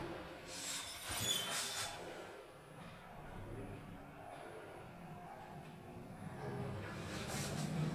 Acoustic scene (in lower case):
elevator